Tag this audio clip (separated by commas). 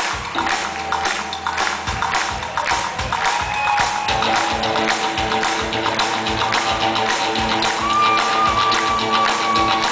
Screaming, Music